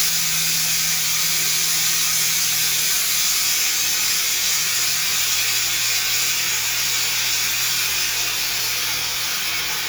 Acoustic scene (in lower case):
restroom